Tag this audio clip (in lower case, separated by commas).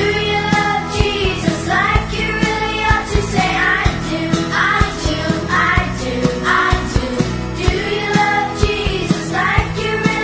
music, music for children, singing